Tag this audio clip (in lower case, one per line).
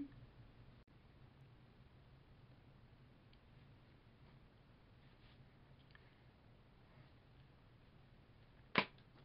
silence